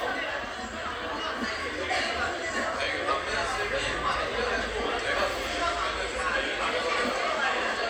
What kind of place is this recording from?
cafe